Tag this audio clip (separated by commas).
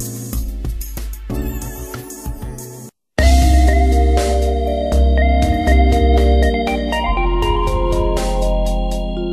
Jazz, Music